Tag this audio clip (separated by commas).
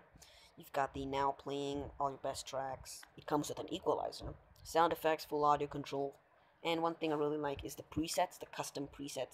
Speech